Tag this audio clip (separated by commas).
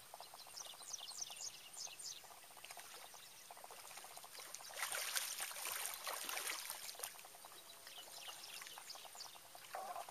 Animal